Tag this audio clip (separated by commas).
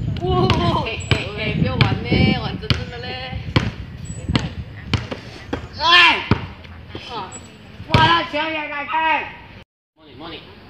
basketball bounce